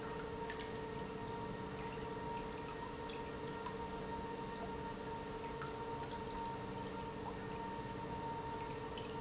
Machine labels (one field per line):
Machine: pump